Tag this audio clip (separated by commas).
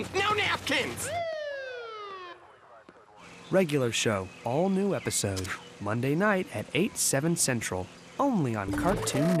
Speech, outside, rural or natural, Music